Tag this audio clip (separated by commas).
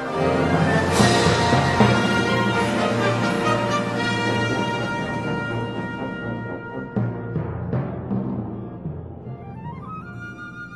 Exciting music, Music